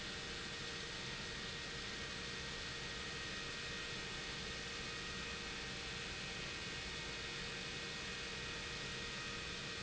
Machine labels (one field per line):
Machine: pump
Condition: abnormal